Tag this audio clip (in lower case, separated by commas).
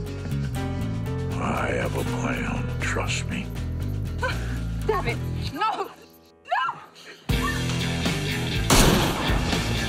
speech, music